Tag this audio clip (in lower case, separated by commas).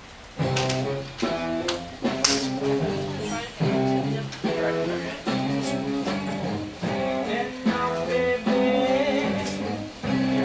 music, speech